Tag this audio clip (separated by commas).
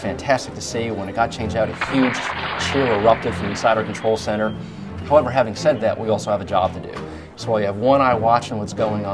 Speech, Music